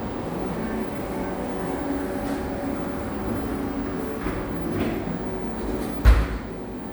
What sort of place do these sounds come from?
cafe